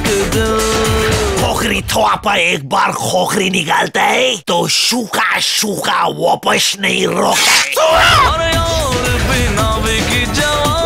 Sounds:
Music, Speech

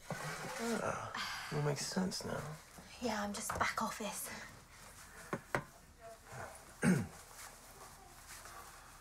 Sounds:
Speech

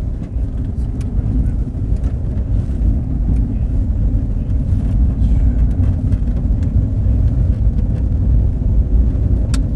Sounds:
Field recording

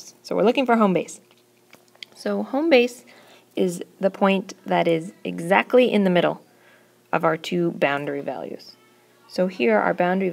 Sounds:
Speech

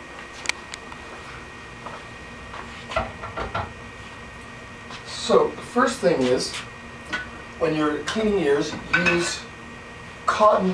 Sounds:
Speech

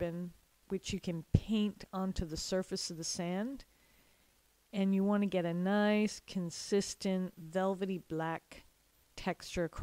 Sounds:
Speech

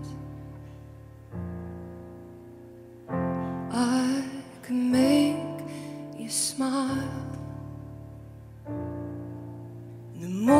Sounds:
Music

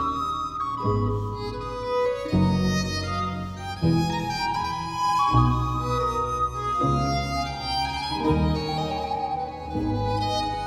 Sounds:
Music

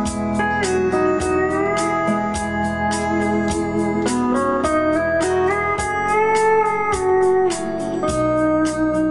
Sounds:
Steel guitar, Music

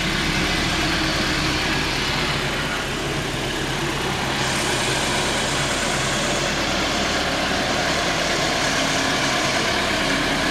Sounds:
Idling

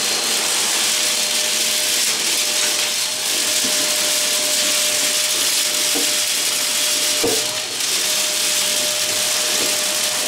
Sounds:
Vacuum cleaner

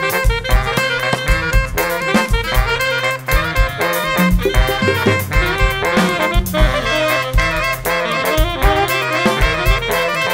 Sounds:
Saxophone, Brass instrument, playing saxophone

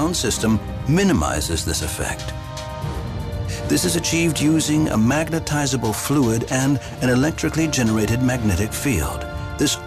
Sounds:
Speech, Music

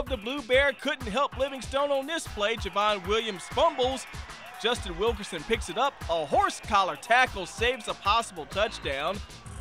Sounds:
Music, Speech

